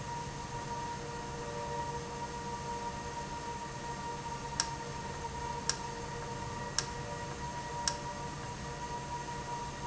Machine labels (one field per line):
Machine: valve